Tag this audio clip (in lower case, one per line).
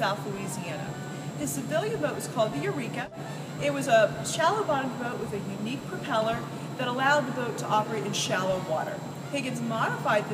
speech
sailboat